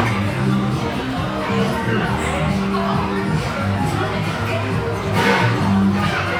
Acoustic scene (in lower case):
restaurant